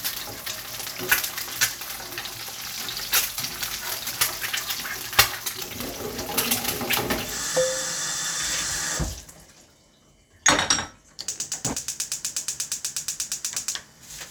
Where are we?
in a kitchen